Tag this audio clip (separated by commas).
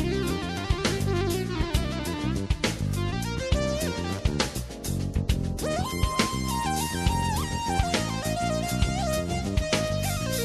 playing synthesizer